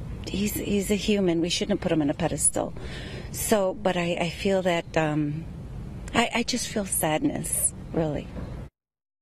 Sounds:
outside, urban or man-made, speech

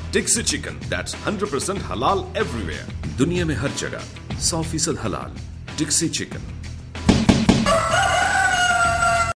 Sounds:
speech, music

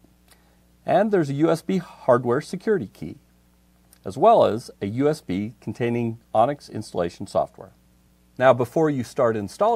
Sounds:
speech

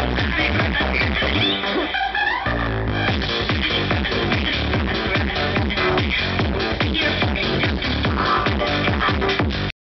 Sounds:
music

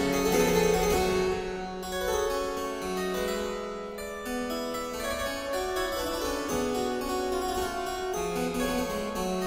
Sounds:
playing harpsichord, music, harpsichord

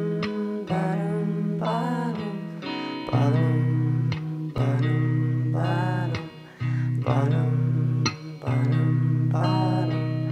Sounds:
independent music, music

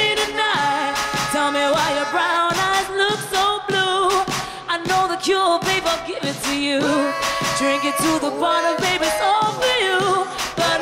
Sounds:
music, music of asia

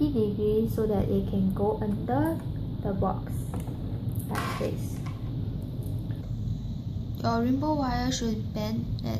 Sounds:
speech

